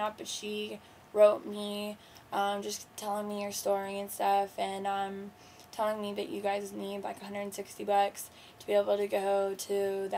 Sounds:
speech

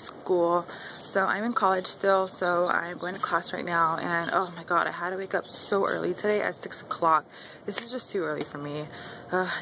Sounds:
speech

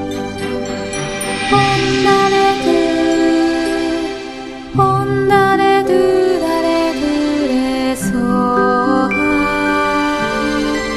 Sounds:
music, mantra

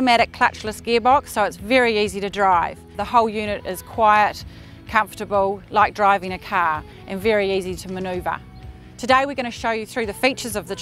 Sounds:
speech

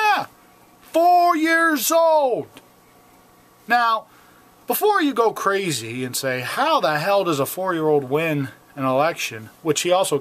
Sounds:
speech

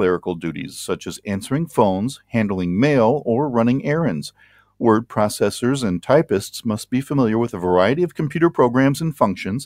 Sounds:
typing on typewriter

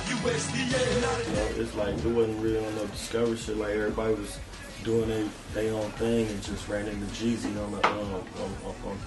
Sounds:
music, speech

